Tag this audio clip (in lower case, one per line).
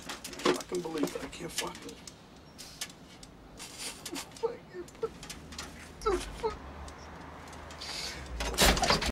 slam
speech
door